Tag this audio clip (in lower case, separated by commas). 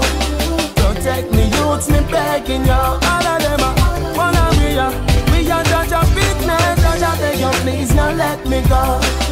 afrobeat